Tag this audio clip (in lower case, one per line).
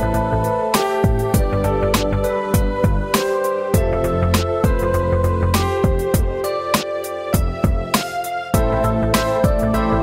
background music
music
soundtrack music